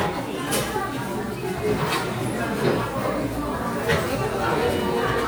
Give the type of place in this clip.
crowded indoor space